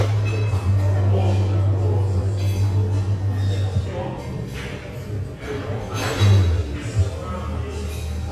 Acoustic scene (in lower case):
cafe